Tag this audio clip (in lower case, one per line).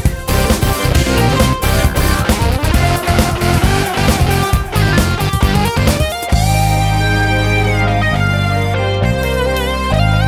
music
sampler